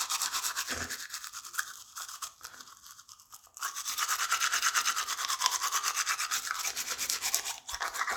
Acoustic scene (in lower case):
restroom